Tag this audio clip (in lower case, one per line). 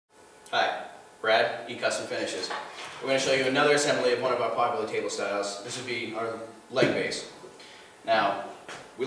speech